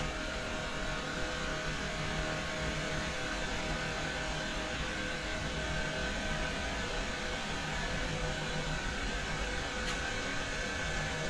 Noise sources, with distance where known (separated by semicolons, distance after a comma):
small-sounding engine